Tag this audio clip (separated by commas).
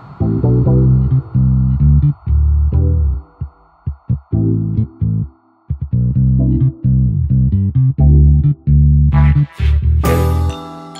Synthesizer, Music